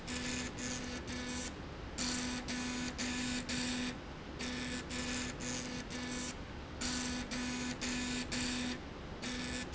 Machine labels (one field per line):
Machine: slide rail